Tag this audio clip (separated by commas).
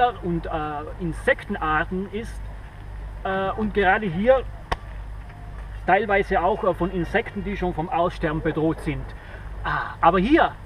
Speech